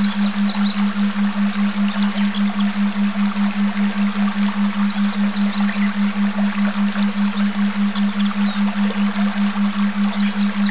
A gurgling stream with chirping birds in the background